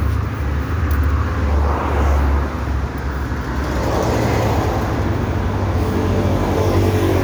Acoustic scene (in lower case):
street